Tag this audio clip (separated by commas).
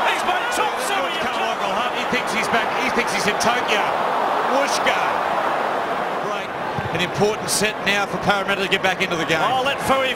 Speech